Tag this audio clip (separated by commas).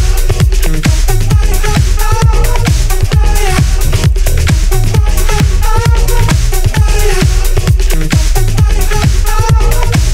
Music, Funk